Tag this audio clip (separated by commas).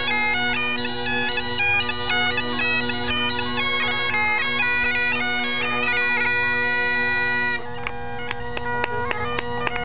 Bagpipes, woodwind instrument